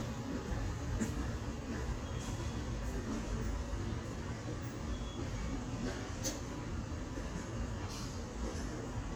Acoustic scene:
subway station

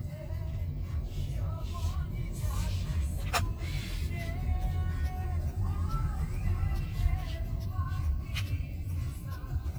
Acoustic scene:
car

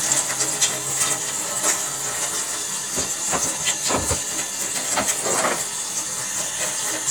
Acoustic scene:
kitchen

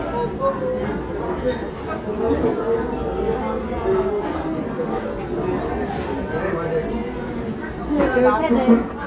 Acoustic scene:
crowded indoor space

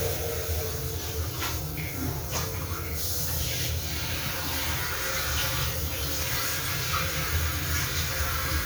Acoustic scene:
restroom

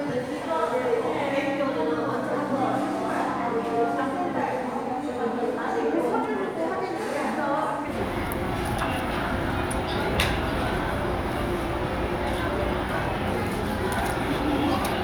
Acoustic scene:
crowded indoor space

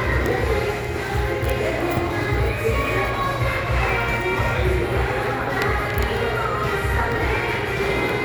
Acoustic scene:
crowded indoor space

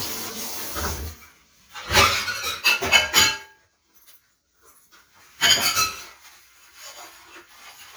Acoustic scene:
kitchen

